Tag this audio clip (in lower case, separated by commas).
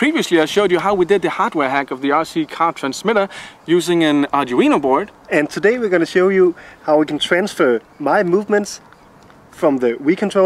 speech